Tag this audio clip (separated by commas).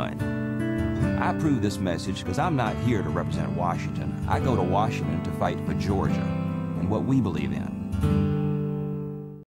Speech, Music